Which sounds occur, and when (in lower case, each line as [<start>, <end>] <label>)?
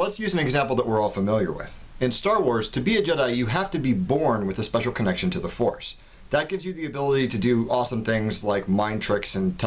[0.00, 1.78] man speaking
[0.00, 9.65] mechanisms
[1.98, 5.90] man speaking
[5.95, 6.23] breathing
[6.32, 9.65] man speaking